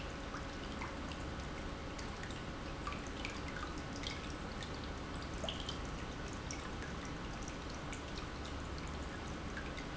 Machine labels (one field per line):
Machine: pump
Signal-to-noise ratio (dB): 0 dB